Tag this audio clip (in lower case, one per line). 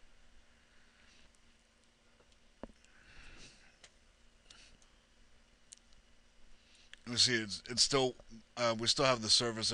speech